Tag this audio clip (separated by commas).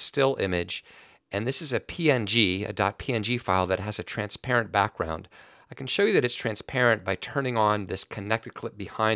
Speech